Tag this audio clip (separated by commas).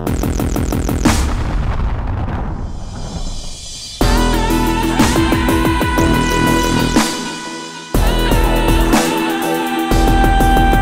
Dubstep, Electronic music, Music